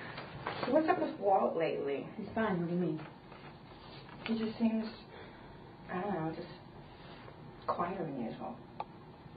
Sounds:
speech

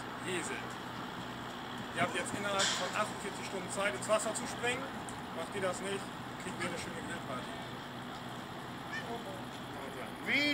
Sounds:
speech

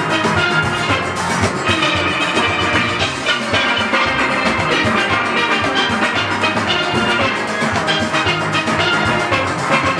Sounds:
playing steelpan

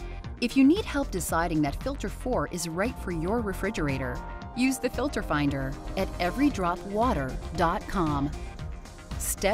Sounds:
music
speech

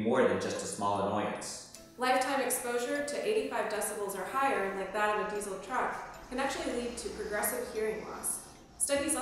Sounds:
speech
music

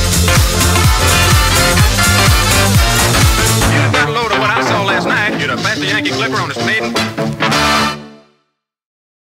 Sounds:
music

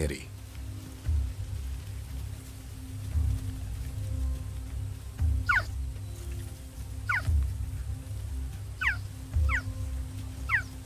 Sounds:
cheetah chirrup

